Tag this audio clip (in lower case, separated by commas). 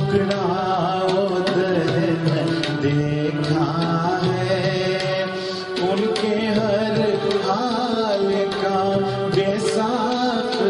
percussion, drum, tabla